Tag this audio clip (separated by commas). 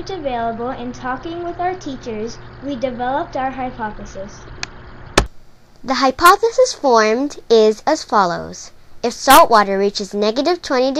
Speech